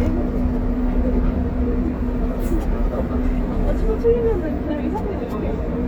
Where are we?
on a bus